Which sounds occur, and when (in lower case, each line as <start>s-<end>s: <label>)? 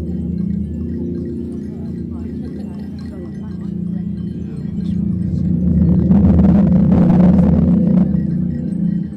0.0s-9.1s: bell
0.0s-9.1s: mechanisms
1.7s-4.1s: speech
4.3s-5.6s: speech